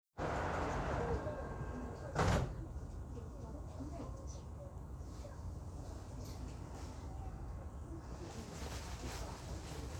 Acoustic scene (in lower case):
subway train